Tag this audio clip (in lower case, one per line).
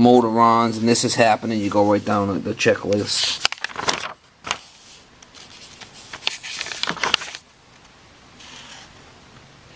speech